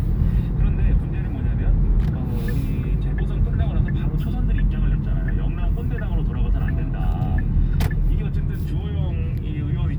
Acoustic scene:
car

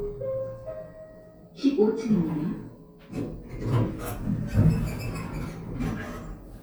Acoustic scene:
elevator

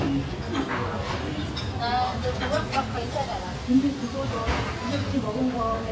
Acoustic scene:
restaurant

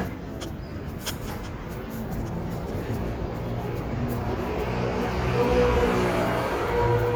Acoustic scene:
street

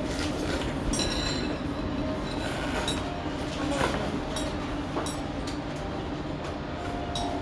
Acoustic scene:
restaurant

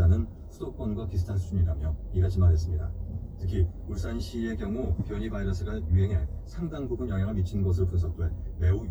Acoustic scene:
car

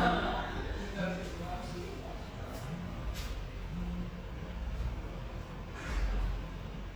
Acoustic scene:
cafe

